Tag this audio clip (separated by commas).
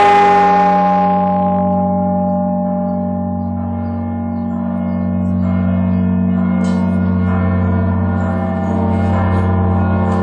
Church bell